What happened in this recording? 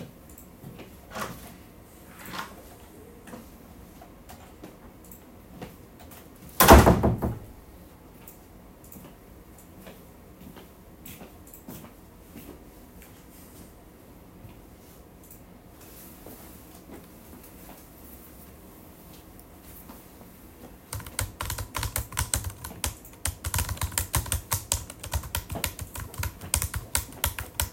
I opened and closed the door walked to my desk and started typing on my keyboard.